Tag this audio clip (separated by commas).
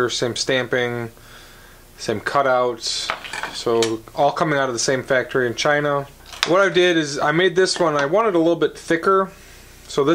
Speech